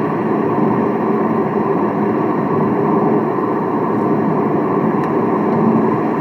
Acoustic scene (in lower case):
car